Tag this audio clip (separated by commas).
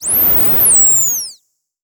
Animal